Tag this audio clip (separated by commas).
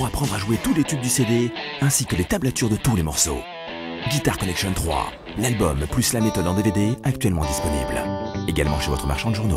Music, Plucked string instrument, Electric guitar, Guitar, Strum, Musical instrument, Speech